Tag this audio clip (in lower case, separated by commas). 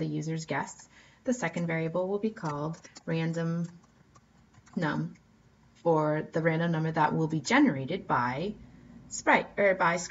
speech